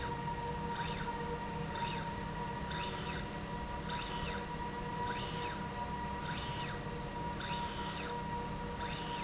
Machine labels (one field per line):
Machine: slide rail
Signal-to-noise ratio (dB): -6 dB